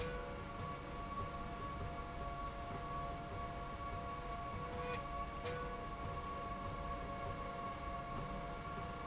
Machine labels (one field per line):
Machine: slide rail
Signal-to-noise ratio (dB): 0 dB